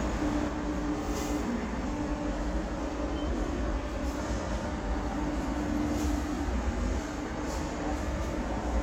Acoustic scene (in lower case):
subway station